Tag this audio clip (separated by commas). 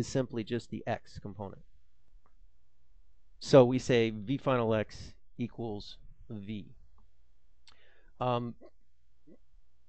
Speech